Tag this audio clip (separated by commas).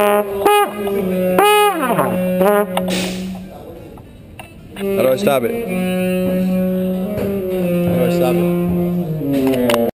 Music, Speech, Trumpet, Musical instrument